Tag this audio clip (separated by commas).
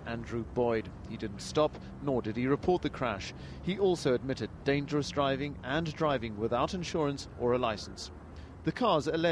Speech